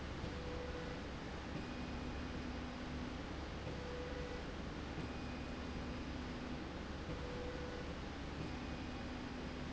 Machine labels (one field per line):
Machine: slide rail